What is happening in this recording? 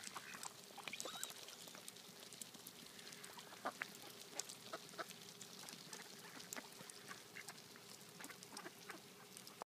Water runs, and a duck quacks